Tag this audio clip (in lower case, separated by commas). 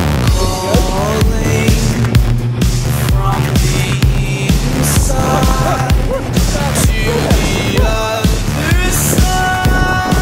speech, music